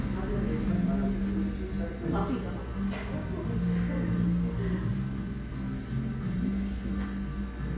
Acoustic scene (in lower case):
cafe